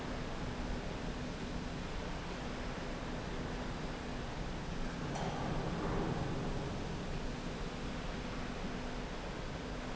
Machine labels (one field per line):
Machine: slide rail